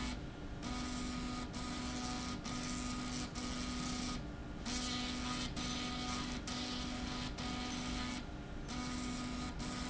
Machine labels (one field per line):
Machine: slide rail